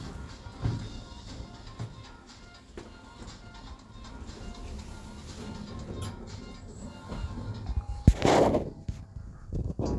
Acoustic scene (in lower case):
elevator